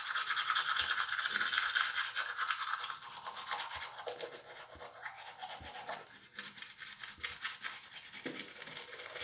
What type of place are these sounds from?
restroom